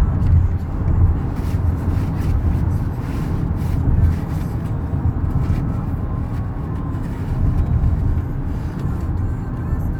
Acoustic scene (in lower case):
car